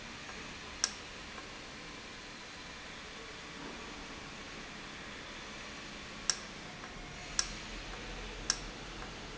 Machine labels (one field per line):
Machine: valve